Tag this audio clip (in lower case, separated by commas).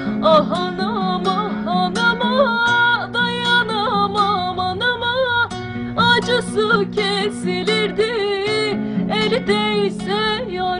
strum, music, plucked string instrument, guitar, acoustic guitar, musical instrument